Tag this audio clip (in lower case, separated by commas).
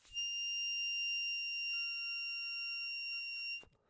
music, harmonica, musical instrument